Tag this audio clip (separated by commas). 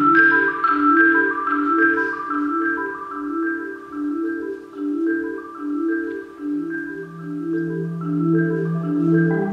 Percussion, Music